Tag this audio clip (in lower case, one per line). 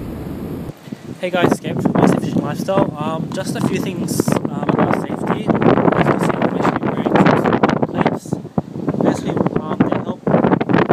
wind
wind noise
wind noise (microphone)